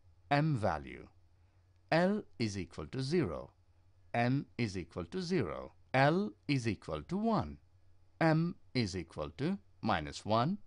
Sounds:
Narration, Speech synthesizer

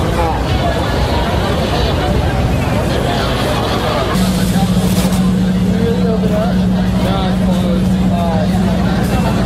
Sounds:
Vehicle, Speech

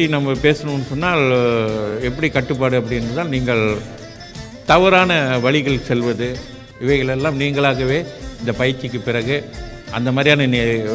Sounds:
Male speech, Speech, Narration, Music

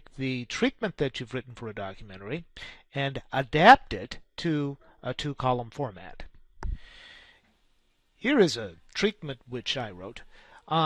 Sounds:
Speech

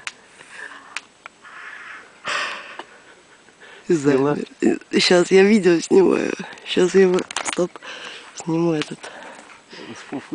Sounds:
Speech, Animal

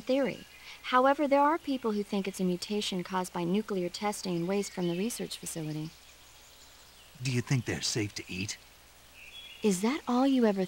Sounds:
Animal, Speech

